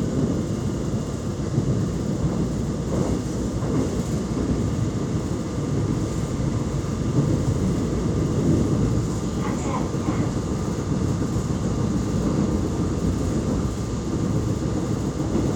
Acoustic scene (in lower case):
subway train